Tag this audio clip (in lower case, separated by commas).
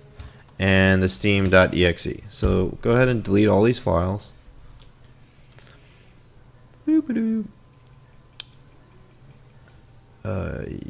speech, inside a small room